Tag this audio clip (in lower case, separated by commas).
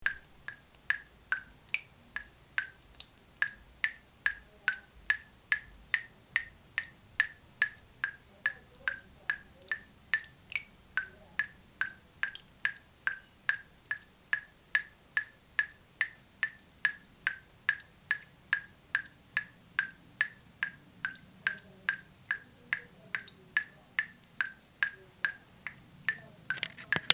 faucet, liquid, drip, home sounds